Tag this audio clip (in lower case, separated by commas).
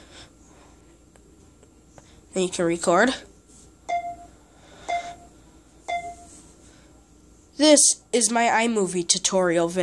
inside a small room, speech, bleep